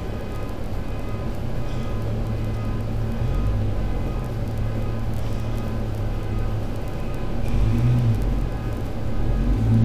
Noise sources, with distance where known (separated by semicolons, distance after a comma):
engine of unclear size; car alarm, far